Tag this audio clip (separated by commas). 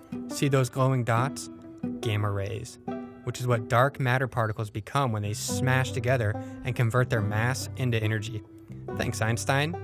Speech, Music